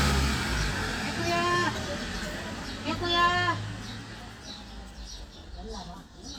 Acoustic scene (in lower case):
residential area